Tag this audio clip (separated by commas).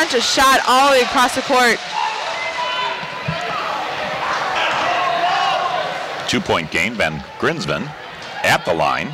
Basketball bounce, Speech, inside a large room or hall